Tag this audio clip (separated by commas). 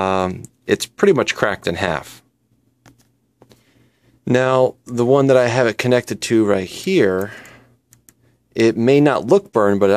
Speech